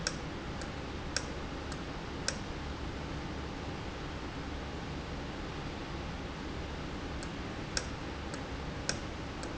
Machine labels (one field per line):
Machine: valve